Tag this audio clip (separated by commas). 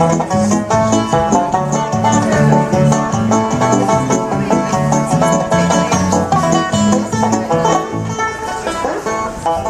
Musical instrument, Banjo, Music, Country, Speech, Plucked string instrument, Bluegrass